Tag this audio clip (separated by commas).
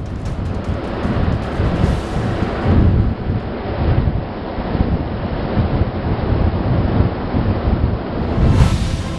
Music